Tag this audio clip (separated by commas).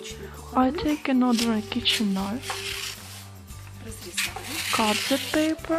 Speech, Music